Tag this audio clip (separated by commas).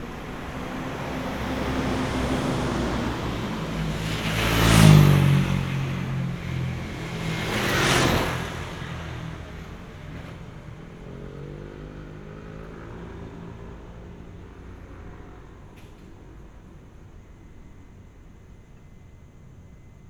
Engine